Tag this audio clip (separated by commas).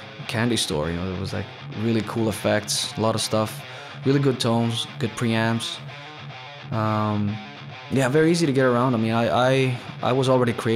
Musical instrument, Guitar, Music, Speech, Plucked string instrument, Strum, Electric guitar